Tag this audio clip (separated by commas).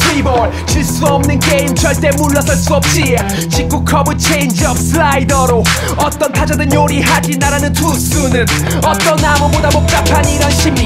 Music